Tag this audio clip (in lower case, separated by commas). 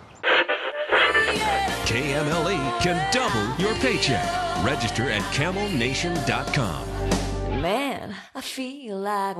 music, speech